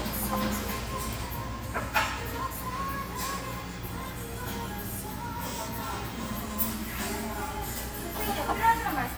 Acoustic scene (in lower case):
restaurant